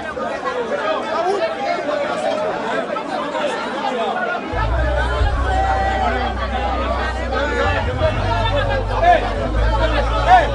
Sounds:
speech
music

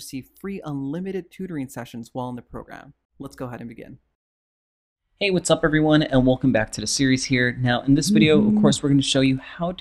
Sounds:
speech

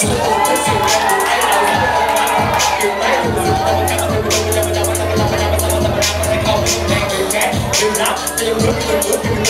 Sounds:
speech
music

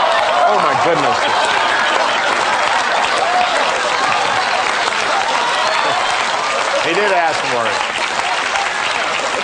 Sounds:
speech

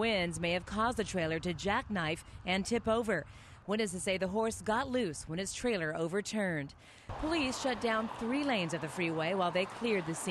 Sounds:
speech

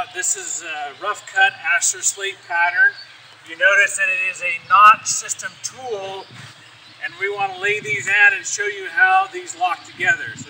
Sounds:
speech

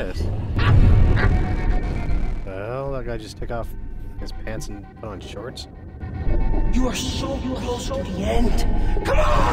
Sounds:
music
speech

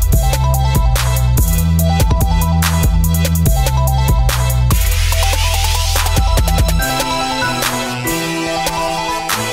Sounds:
music

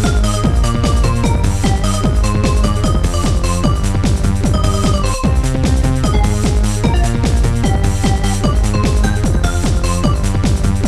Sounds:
music

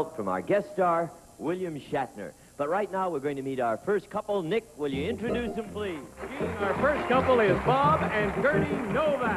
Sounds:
speech
music

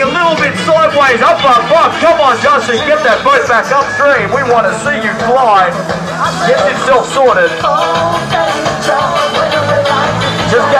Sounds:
speech
music

